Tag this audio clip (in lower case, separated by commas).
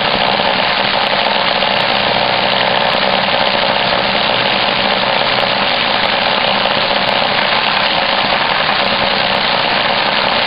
tools